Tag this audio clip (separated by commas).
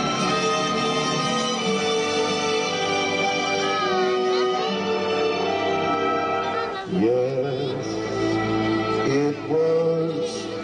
Music, Male singing, Speech